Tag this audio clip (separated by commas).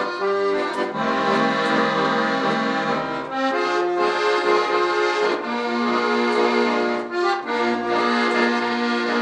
Music, Musical instrument